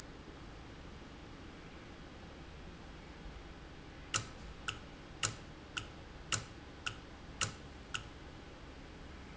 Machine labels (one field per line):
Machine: valve